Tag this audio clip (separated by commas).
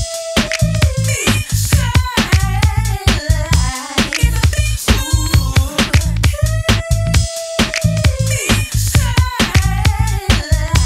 Music